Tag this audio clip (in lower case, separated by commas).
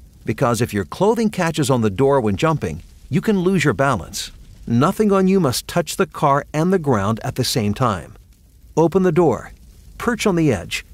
speech